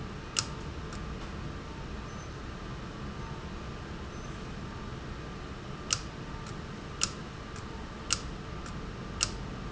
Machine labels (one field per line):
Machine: valve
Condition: abnormal